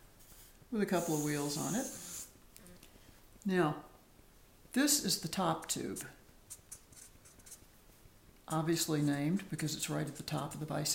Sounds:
speech

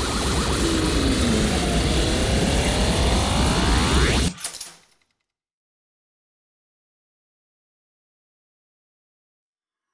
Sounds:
music
printer

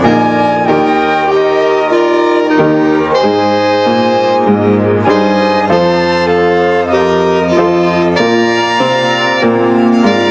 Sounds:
musical instrument
violin
music

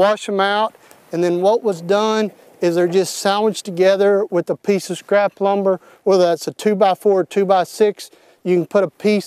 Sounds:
speech

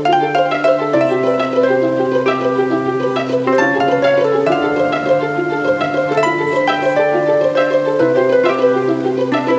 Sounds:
music
pizzicato

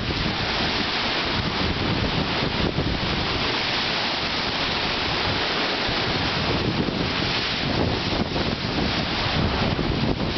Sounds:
ocean burbling
surf
ocean
wind noise (microphone)

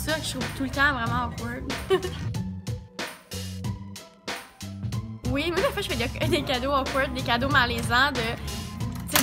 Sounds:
music
speech

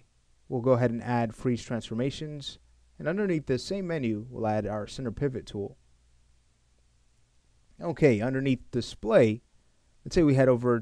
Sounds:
speech

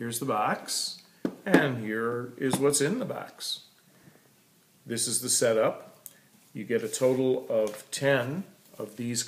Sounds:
speech

